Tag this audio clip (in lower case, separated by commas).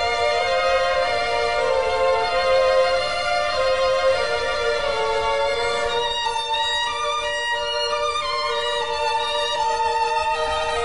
musical instrument, music, fiddle